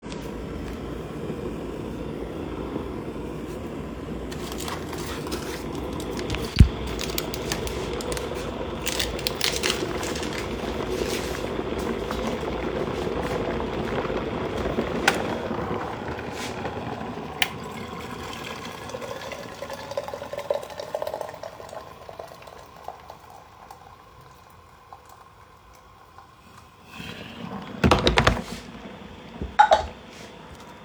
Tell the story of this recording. I boiled water and took kettle with cup and poured into the teapot. There was constant noise of air ventilation above me